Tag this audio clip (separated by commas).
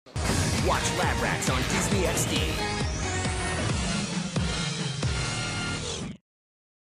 Music, Speech